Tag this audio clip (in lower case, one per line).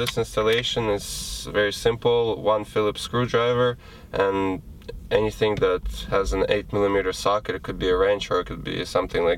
speech